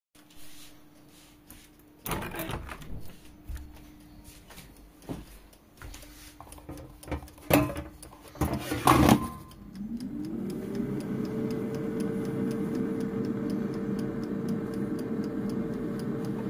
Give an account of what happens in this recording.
Opening a window, putting my plate in the microwave and starting it